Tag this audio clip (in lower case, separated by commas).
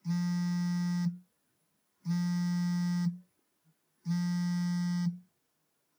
alarm, telephone